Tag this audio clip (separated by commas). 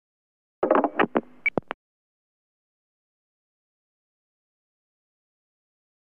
Alarm, Telephone